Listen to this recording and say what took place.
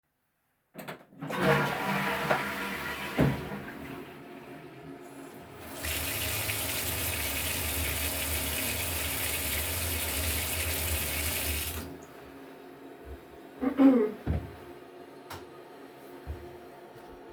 I flushed the toilet, then washed my hands under the sink, coughed and turned off the light switch.